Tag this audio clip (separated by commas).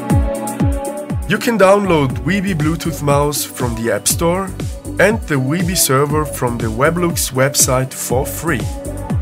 Speech, Music